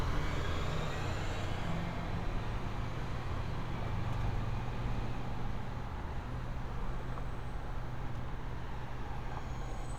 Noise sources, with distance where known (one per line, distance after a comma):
medium-sounding engine